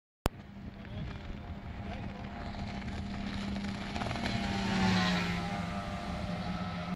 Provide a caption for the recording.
A motor boat is racing across a body of water